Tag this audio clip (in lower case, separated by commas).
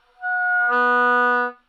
music, woodwind instrument, musical instrument